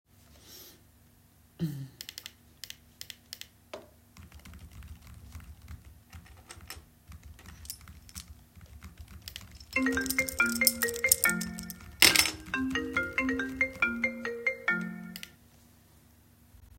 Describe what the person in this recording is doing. I coughed and then clicked the mouse. I started typing on the keyboard while holding my keychain. My phone rang and the keychain made noise at the same time. I put the keychain down, stopped typing, and clicked the mouse to stop the ringing.